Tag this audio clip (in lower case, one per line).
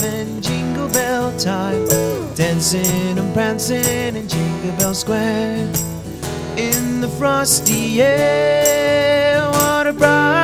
music